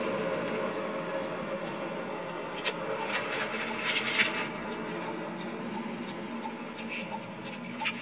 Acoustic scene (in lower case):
car